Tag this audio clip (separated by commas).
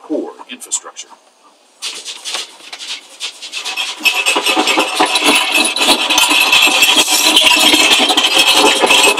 Speech